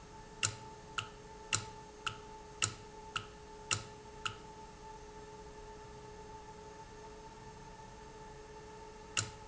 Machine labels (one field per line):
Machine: valve